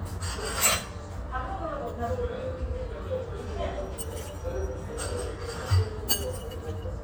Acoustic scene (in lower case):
restaurant